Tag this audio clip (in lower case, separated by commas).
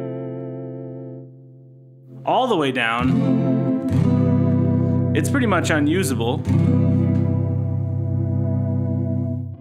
speech, guitar, musical instrument, electric guitar, music, plucked string instrument